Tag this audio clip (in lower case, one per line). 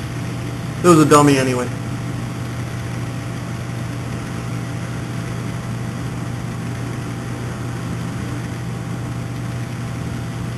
vehicle
speech